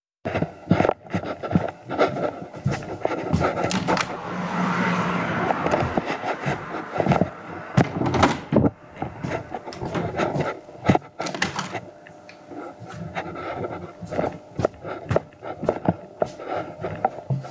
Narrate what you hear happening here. I walk to the Window to open it, a car drives past. Next a walk in to the bedroom and open the door so i can open the bedroom window as well.